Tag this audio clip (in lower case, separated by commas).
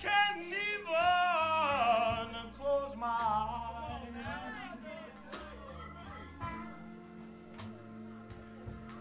music, speech